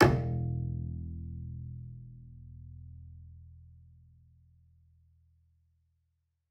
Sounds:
Bowed string instrument, Music, Musical instrument

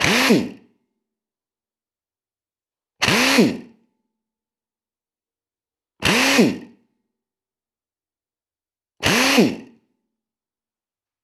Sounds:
Drill, Power tool, Tools

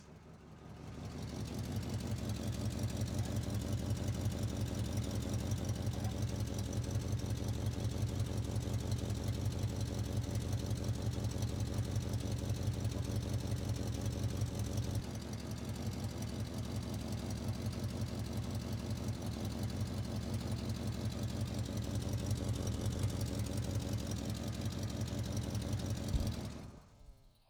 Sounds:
Vehicle, Motor vehicle (road), Truck

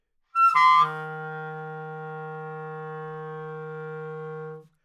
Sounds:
Wind instrument, Musical instrument, Music

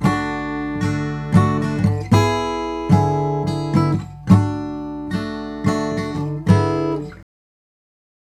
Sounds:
Guitar, Plucked string instrument, Acoustic guitar, Musical instrument, Music, Strum

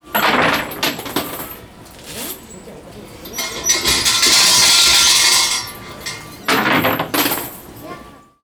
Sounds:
home sounds, Bell, Coin (dropping)

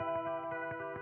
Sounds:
Music, Guitar, Musical instrument, Electric guitar, Plucked string instrument

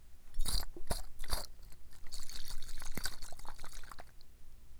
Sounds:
Liquid

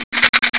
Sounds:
Rattle

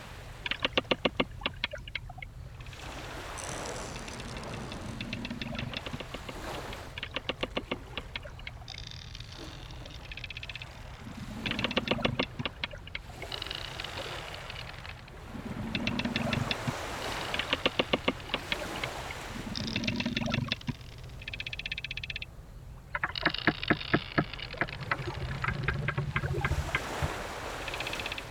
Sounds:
Vehicle, Boat

